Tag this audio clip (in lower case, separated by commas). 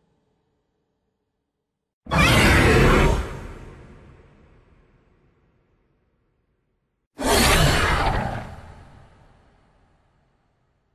sound effect